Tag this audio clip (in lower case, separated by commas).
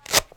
home sounds